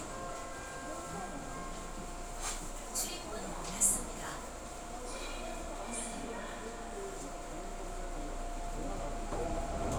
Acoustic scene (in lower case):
subway train